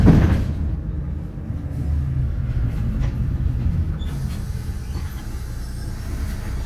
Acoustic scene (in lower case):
bus